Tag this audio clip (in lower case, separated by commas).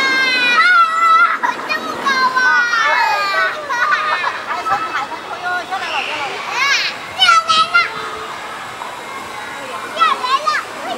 speech